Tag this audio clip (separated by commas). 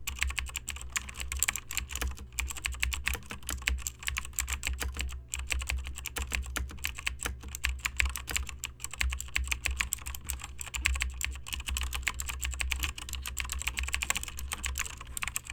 home sounds, Typing